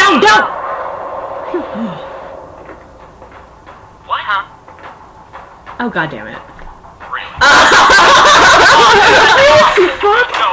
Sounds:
snicker, speech

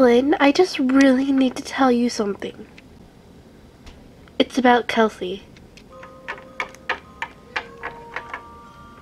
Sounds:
music, speech, inside a small room

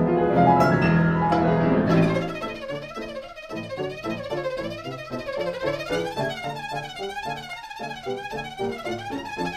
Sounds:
musical instrument, violin, music

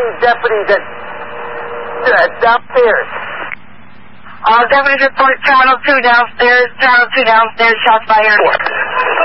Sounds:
police radio chatter

